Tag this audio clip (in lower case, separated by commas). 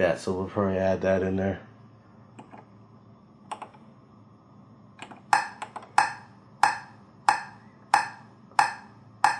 speech, sampler